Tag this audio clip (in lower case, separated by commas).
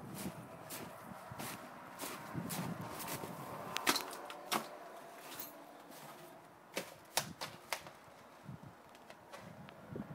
typewriter